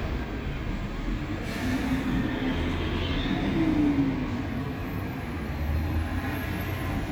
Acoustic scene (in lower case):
street